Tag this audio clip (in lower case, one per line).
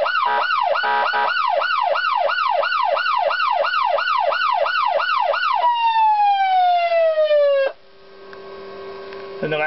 police car (siren)